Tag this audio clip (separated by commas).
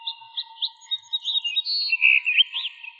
Bird, Animal, bird song, tweet, Wild animals